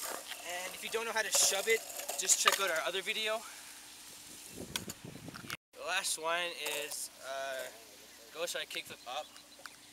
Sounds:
Skateboard, Speech

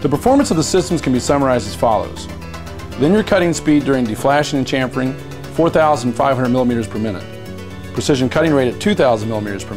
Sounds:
Speech, Music

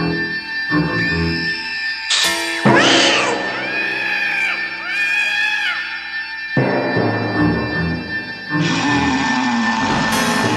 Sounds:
Music

